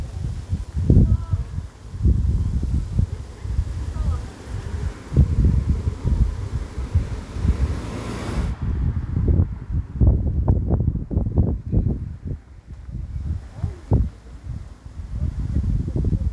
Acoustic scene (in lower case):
residential area